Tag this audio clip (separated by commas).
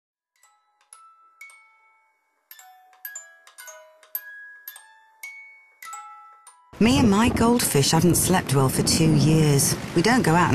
Glockenspiel, xylophone, Mallet percussion